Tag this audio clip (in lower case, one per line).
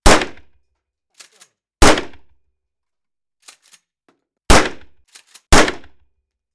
gunshot
explosion